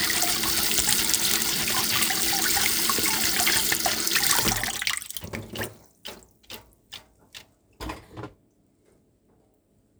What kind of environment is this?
kitchen